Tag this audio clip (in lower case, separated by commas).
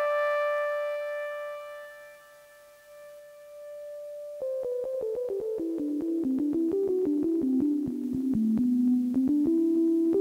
sampler, music